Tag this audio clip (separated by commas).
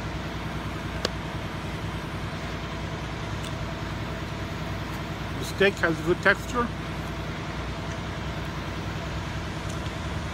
Speech, outside, urban or man-made